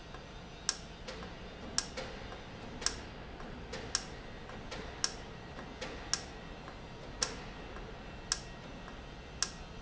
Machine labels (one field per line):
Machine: valve